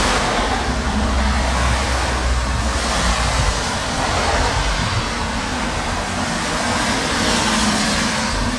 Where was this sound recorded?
on a street